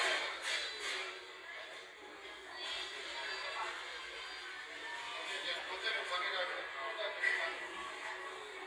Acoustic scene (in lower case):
crowded indoor space